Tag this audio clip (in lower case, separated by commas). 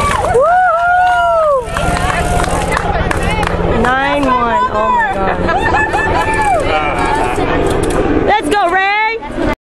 speech